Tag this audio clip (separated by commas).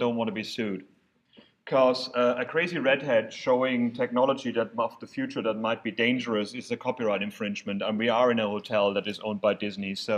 Speech